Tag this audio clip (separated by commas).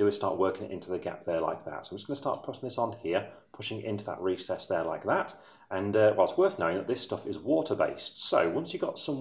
Speech